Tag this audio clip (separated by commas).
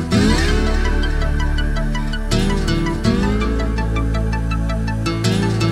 Music